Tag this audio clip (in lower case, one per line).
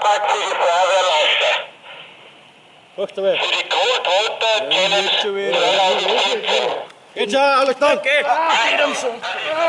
speech